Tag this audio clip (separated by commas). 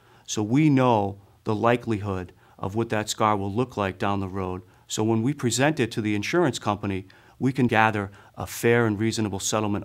Speech